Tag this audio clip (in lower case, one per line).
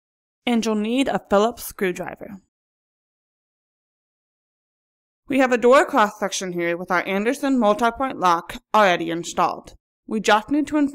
speech